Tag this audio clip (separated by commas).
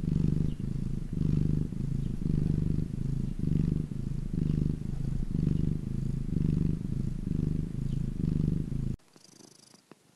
cat purring